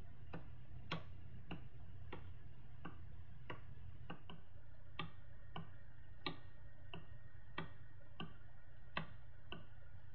A very soft ticktock runs rhythmically in the quiet